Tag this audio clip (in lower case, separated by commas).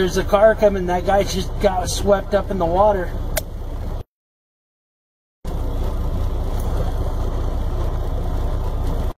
speech